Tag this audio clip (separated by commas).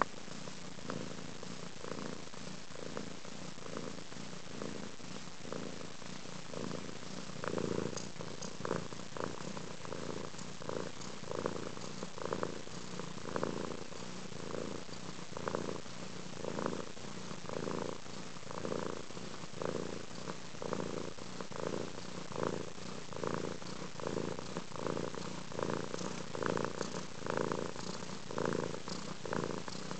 pets, Purr, Cat, Animal